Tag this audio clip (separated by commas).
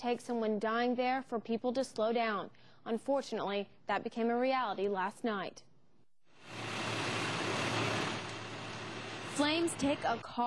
Speech